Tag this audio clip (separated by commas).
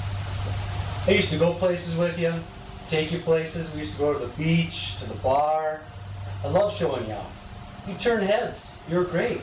Speech